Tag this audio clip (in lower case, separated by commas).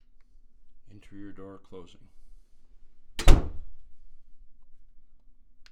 door, domestic sounds, slam